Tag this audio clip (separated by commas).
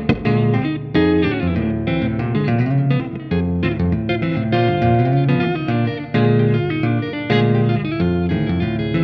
Music, Musical instrument, Guitar, Plucked string instrument